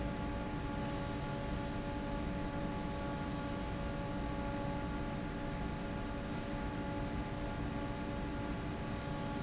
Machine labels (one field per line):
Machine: fan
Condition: normal